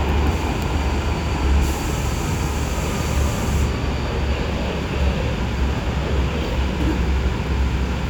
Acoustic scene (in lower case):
subway train